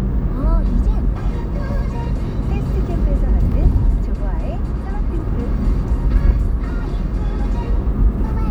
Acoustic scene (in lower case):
car